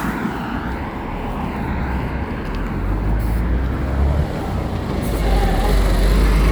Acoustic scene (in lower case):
street